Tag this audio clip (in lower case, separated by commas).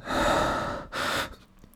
respiratory sounds, breathing